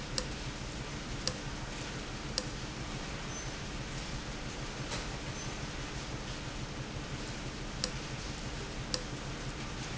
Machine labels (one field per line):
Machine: valve